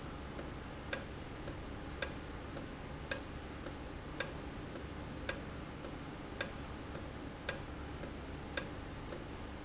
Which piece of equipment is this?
valve